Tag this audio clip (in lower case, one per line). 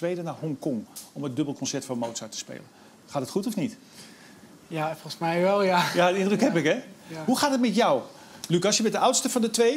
speech